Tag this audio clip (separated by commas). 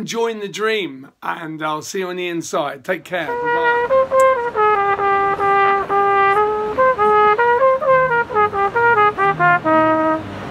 playing cornet